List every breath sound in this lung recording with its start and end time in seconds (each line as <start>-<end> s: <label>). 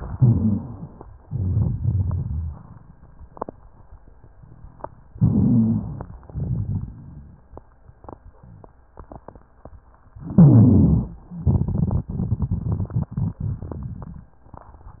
0.06-1.02 s: wheeze
0.08-1.03 s: inhalation
1.21-2.71 s: crackles
1.23-2.84 s: exhalation
5.10-6.19 s: inhalation
5.14-6.10 s: wheeze
6.23-7.60 s: exhalation
6.25-7.41 s: crackles
10.14-11.25 s: inhalation
10.22-11.18 s: wheeze
11.37-14.33 s: exhalation
11.37-14.33 s: crackles